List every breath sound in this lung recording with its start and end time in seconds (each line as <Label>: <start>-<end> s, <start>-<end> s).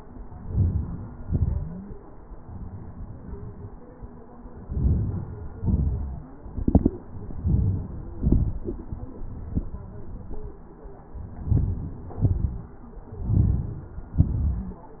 Inhalation: 0.52-1.16 s, 4.72-5.39 s, 7.44-8.01 s, 11.45-11.97 s, 13.35-13.91 s
Exhalation: 1.23-1.71 s, 5.64-6.08 s, 8.24-8.67 s, 12.20-12.66 s, 14.24-14.80 s